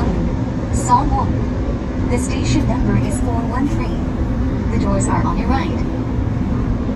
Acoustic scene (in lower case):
subway train